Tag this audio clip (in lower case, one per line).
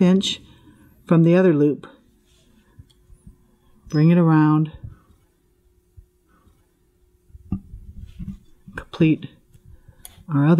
speech
inside a small room